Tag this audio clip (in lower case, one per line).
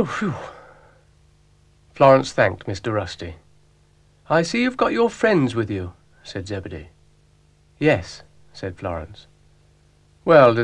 speech